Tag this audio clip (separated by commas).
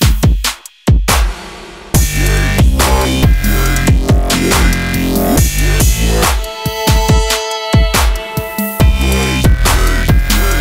Music